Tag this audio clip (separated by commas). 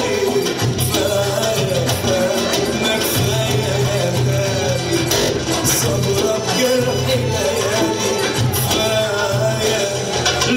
Salsa music